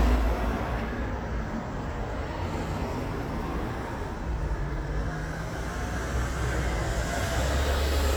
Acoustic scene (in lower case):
street